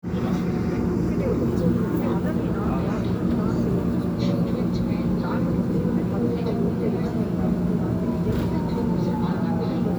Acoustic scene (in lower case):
subway train